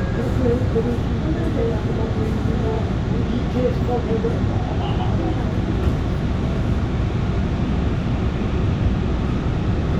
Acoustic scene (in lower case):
subway train